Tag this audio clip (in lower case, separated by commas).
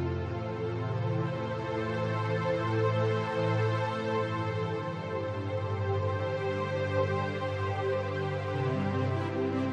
music